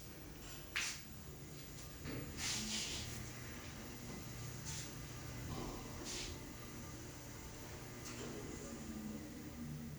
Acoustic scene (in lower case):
elevator